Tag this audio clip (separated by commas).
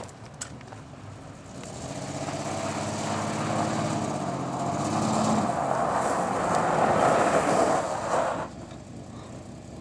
Vehicle, Motor vehicle (road)